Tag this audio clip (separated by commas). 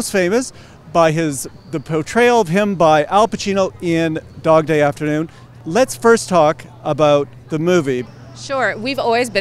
Speech